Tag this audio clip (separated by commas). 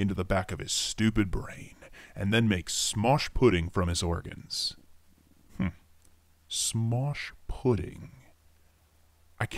Speech